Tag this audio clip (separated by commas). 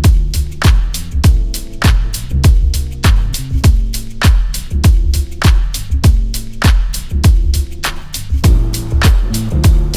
Music